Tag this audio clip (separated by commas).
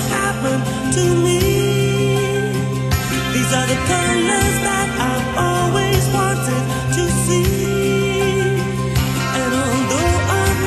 Music